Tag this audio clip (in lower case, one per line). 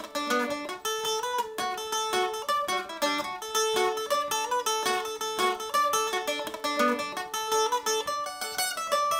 music
mandolin
musical instrument
plucked string instrument